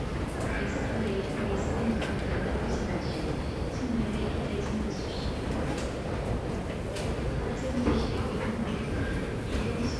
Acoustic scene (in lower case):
subway station